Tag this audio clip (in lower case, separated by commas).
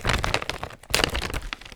crumpling